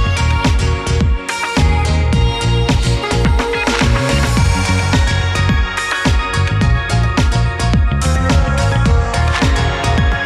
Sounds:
Music

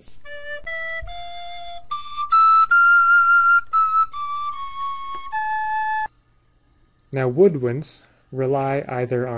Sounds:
Speech, Music, Musical instrument, Brass instrument

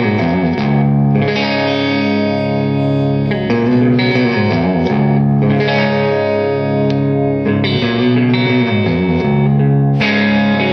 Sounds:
Strum, Plucked string instrument, Acoustic guitar, Musical instrument, Guitar, Music, Electric guitar

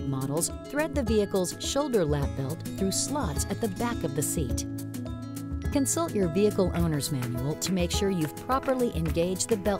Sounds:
Speech, Music

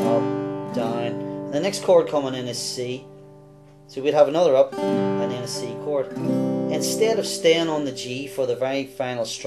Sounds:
Music, Speech

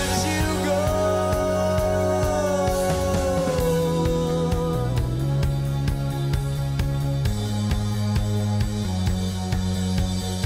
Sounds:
Music

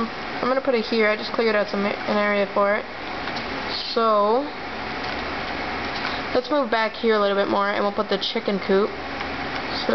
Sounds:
Speech

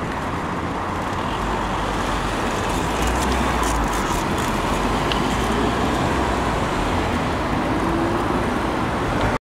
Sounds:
Traffic noise, Vehicle

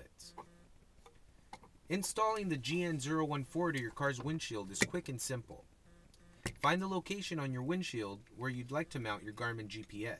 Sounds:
Speech

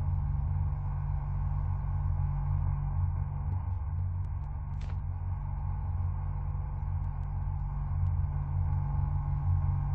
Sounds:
Car

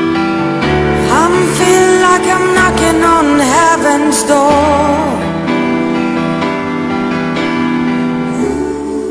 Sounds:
Music

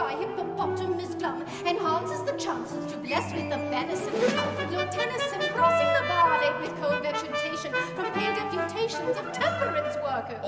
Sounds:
Speech, Music

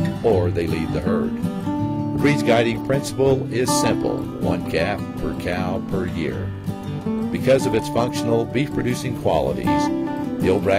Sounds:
Music, Speech

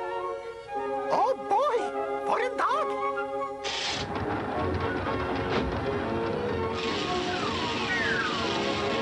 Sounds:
Music, Speech

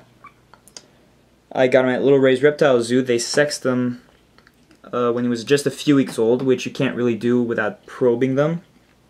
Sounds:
Speech

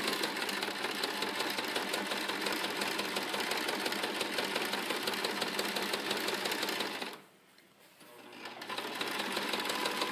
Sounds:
Sewing machine

